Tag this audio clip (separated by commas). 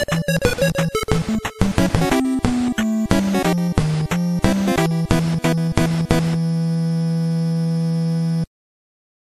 Video game music, Music